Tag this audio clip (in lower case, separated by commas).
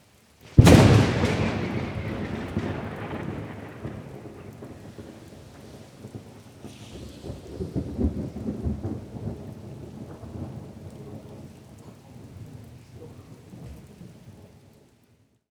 thunder, thunderstorm